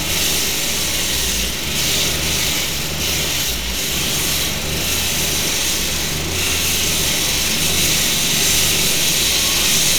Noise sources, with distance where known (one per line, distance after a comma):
engine of unclear size